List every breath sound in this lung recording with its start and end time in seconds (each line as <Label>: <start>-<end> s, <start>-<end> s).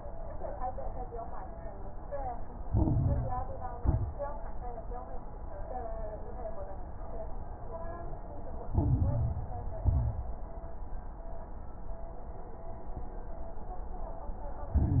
Inhalation: 2.66-3.74 s, 8.72-9.78 s, 14.71-15.00 s
Exhalation: 3.80-4.35 s, 9.82-10.45 s
Crackles: 2.66-3.74 s, 3.80-4.35 s, 8.72-9.78 s, 9.82-10.45 s, 14.71-15.00 s